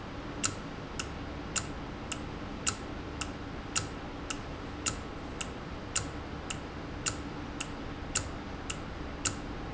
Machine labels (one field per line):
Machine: valve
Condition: normal